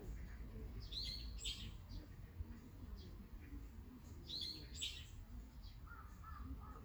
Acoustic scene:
park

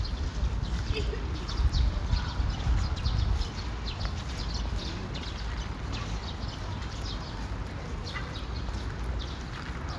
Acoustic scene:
park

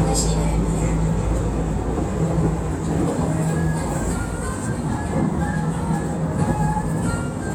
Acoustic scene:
subway train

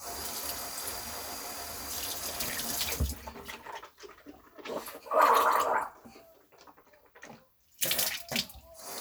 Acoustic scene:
restroom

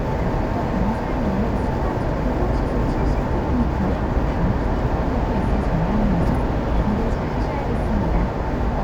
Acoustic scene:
car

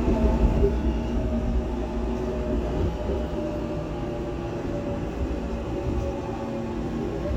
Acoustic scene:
subway train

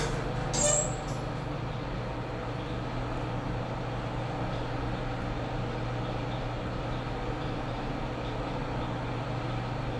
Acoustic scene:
elevator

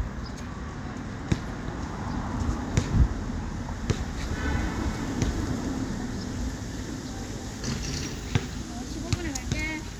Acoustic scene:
residential area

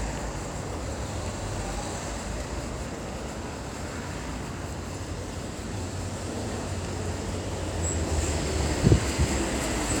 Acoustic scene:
street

